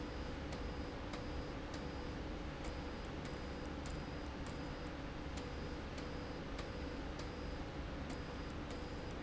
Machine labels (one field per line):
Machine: slide rail